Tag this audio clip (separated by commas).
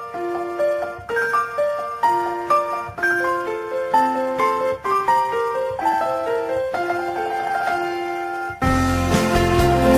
Music